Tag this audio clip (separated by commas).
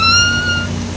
Door, Domestic sounds, Squeak